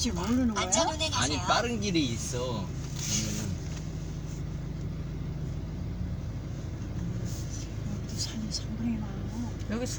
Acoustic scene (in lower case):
car